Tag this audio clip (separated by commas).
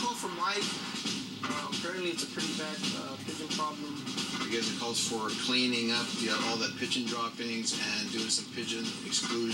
outside, urban or man-made, Music, Speech